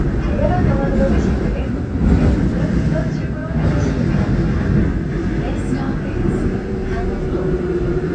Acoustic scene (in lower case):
subway train